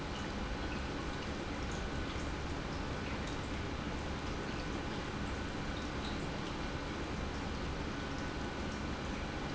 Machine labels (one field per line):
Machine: pump